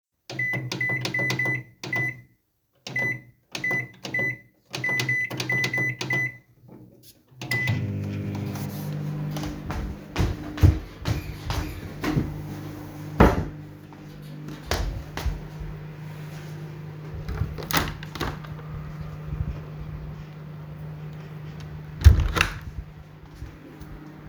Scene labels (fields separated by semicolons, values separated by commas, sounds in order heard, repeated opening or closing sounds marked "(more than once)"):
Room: kitchen; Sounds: microwave, window (more than once)